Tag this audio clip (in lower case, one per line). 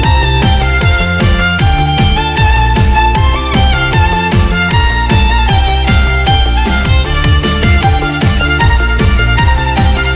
exciting music
music